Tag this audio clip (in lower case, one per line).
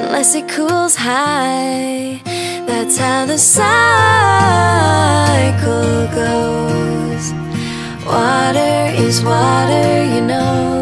music